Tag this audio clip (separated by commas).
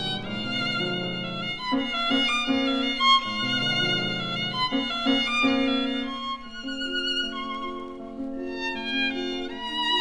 fiddle, Bowed string instrument